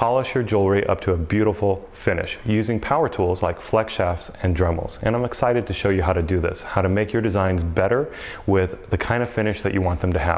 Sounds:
Speech

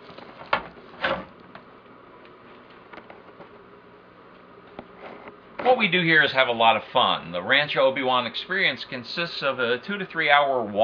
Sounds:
Speech, inside a public space

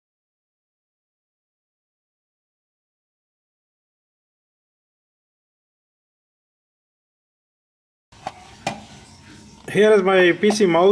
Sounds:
mouse clicking

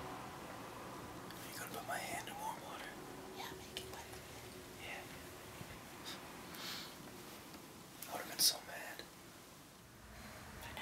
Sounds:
Speech

